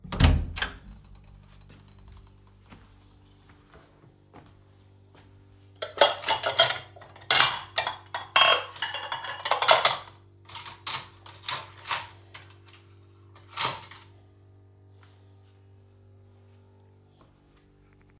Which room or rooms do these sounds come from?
kitchen